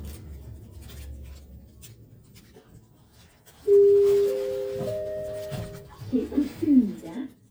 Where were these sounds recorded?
in an elevator